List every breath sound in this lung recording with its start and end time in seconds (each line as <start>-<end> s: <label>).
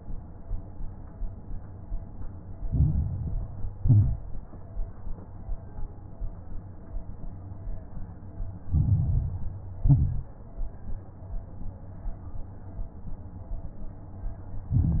2.66-3.74 s: inhalation
2.66-3.74 s: crackles
3.80-4.41 s: exhalation
3.80-4.41 s: crackles
8.66-9.80 s: inhalation
8.66-9.80 s: crackles
9.82-10.44 s: exhalation
9.82-10.44 s: crackles
14.71-15.00 s: inhalation
14.71-15.00 s: crackles